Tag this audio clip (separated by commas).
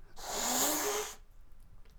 Hiss, Domestic animals, Animal, Cat